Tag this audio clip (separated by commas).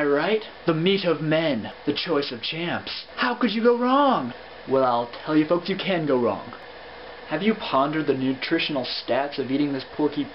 Speech